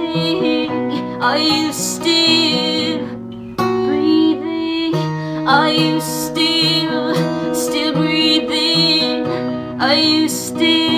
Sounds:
musical instrument
music

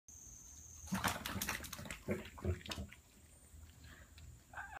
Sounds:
dog
animal
pets

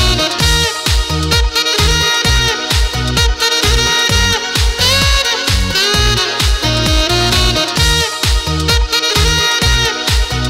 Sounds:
playing saxophone

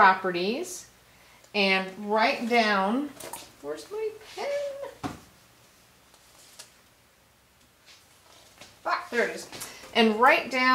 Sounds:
speech

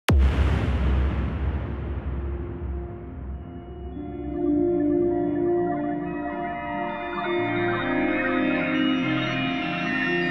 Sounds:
music
electronic music

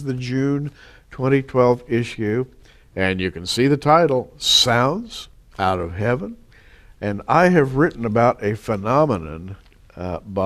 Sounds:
speech

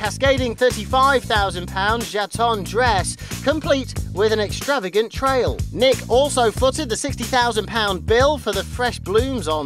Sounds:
speech
music

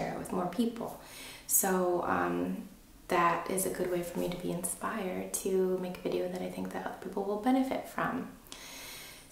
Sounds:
speech

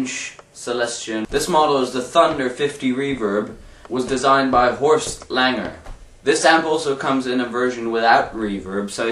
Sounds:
music
speech
guitar

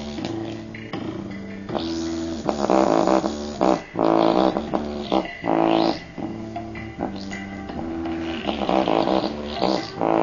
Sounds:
music

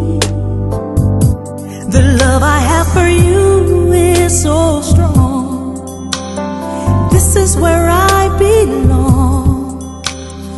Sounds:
music

